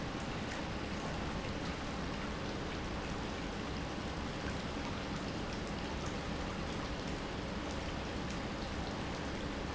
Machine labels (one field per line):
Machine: pump